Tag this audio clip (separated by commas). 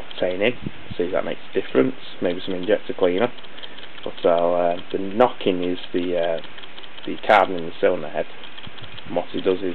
Speech